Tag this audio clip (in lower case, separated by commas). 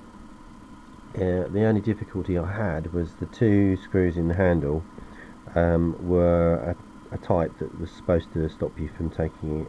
speech